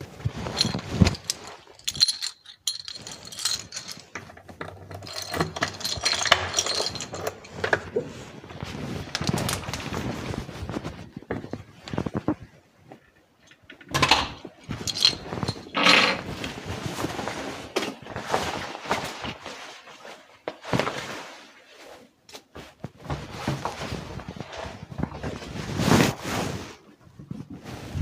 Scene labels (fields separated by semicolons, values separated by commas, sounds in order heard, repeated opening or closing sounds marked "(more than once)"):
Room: hallway, living room; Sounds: keys, door (more than once), footsteps